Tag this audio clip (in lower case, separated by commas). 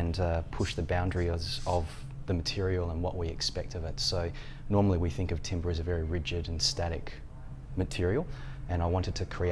speech